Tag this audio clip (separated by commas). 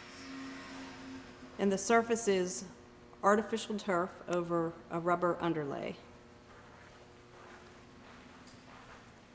Speech